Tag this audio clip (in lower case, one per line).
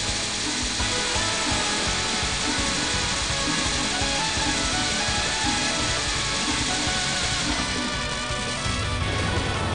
music